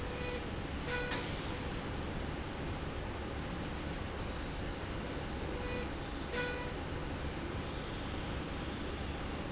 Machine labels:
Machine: slide rail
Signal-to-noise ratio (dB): -6 dB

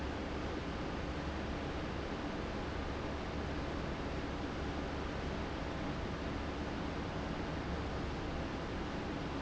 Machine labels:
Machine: fan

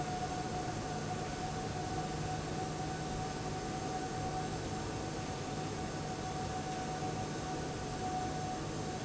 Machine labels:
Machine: fan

